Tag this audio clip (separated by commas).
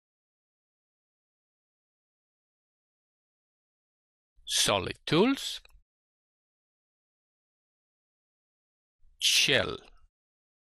Speech